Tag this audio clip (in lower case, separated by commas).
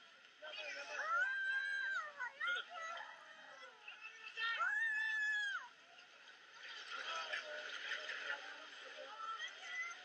speech